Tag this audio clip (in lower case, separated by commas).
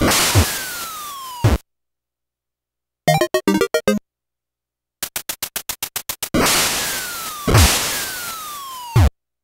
music